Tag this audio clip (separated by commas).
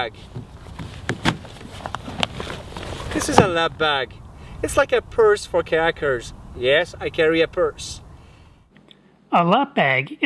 Speech